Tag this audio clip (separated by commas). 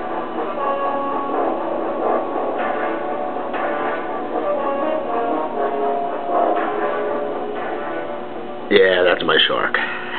Music